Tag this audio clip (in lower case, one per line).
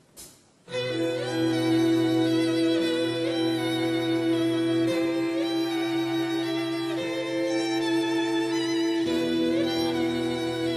music